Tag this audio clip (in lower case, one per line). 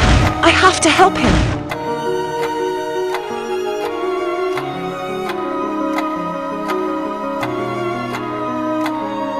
speech
music